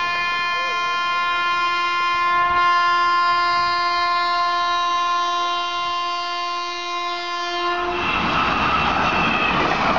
A train is blowing its horn for a long sustained time as it passes by